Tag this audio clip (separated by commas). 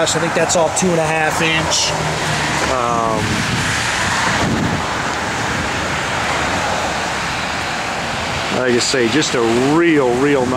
outside, urban or man-made, Vehicle, Speech